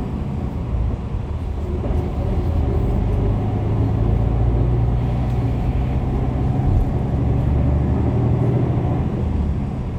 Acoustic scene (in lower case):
bus